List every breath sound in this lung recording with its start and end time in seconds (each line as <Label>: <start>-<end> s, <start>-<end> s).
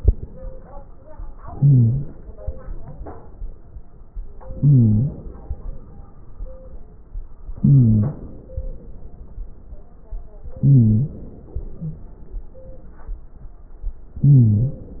Inhalation: 1.43-2.42 s, 4.49-5.61 s, 7.55-8.56 s, 10.57-11.49 s, 14.16-15.00 s
Wheeze: 1.43-2.42 s, 4.49-5.15 s, 7.55-8.23 s, 10.57-11.20 s, 14.16-14.87 s